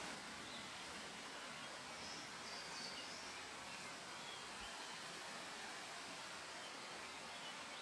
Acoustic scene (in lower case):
park